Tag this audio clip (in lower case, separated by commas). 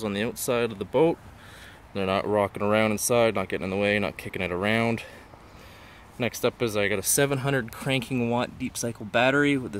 speech